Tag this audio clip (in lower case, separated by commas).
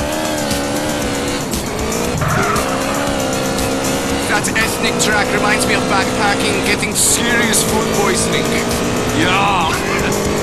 music, speech